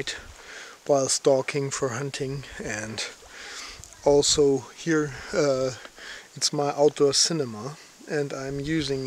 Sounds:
Speech

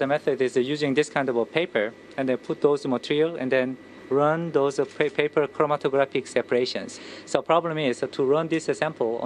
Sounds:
Speech

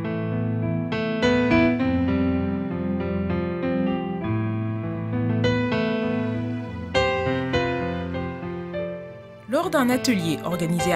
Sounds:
Music, Speech

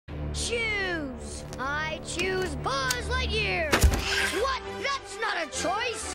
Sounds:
Music, Speech

